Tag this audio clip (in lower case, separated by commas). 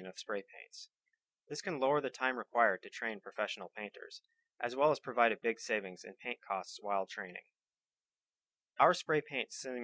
speech